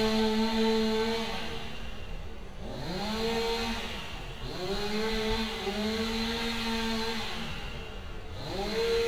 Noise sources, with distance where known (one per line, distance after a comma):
unidentified powered saw, near